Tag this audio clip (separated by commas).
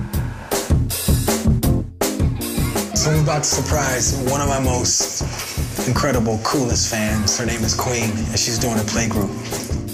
Speech, Music